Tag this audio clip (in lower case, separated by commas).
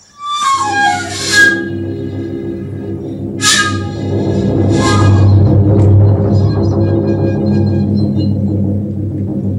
musical instrument, music, flute